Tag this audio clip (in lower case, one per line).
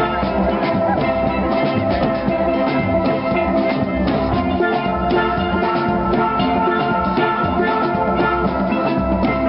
musical instrument
steelpan
percussion
music
drum